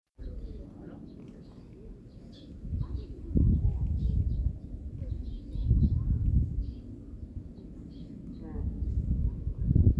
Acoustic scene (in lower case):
park